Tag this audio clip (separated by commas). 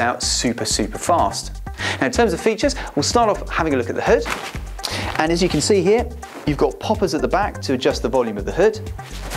Speech, Music